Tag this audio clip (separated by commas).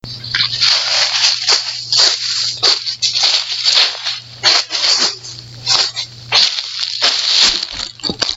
Walk